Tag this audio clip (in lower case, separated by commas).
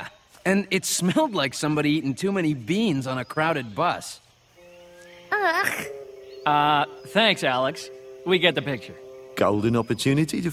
speech, music, outside, rural or natural